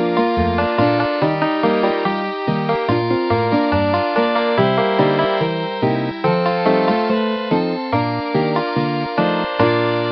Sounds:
Piano, Music, Musical instrument

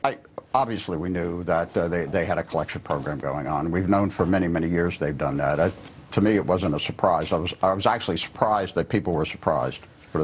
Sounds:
Speech

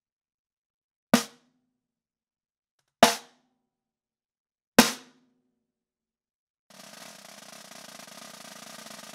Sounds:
playing snare drum

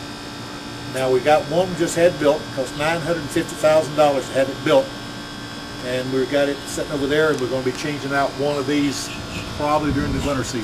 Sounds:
Speech

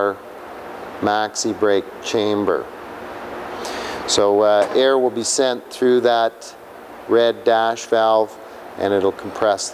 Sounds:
Speech

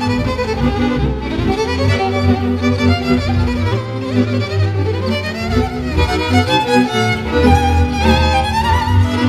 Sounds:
Music

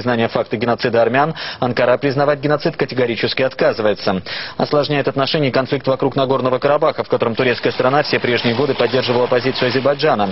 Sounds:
Speech

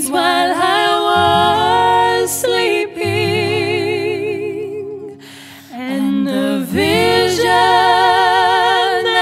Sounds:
Music

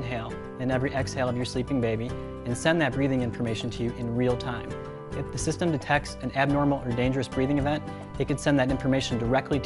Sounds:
Music, Speech

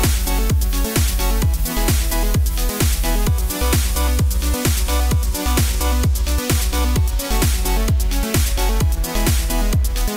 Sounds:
Music, Electronic music

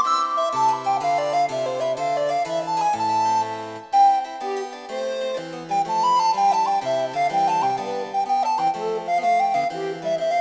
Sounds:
playing harpsichord

